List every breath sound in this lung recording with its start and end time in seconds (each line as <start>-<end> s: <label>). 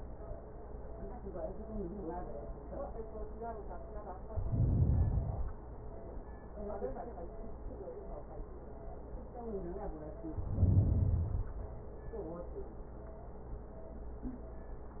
4.27-5.62 s: inhalation
10.34-11.69 s: inhalation